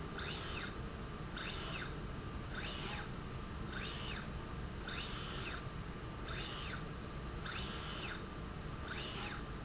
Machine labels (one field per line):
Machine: slide rail